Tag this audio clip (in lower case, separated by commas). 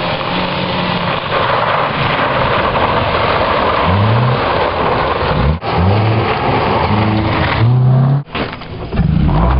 vehicle, skidding, motor vehicle (road), car, car passing by